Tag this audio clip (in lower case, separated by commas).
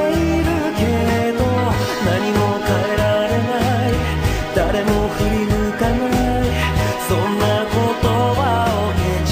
singing, music